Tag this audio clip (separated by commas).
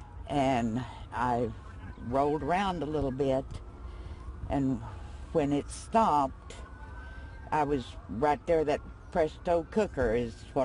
Speech